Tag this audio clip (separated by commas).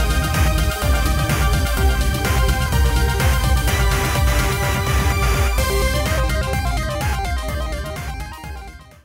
Music